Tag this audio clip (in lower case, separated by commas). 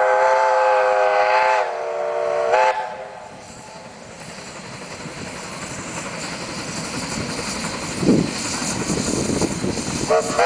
train whistling